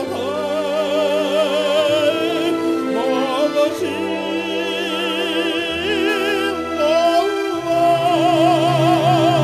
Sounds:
music

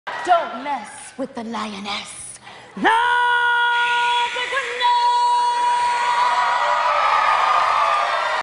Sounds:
speech

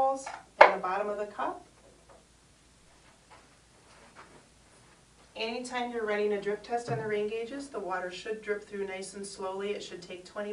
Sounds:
speech

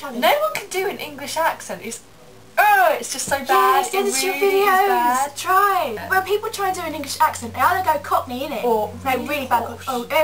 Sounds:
speech

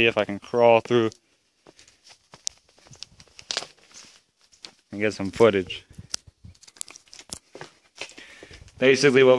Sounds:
speech, outside, urban or man-made

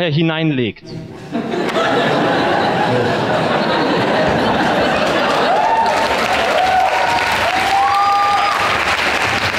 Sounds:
speech

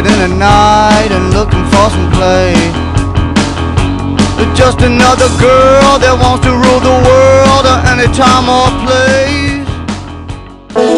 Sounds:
music

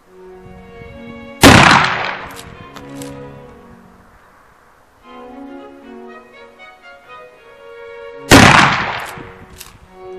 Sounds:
gunshot

